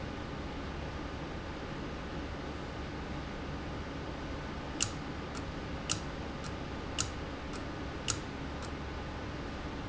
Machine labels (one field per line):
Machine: valve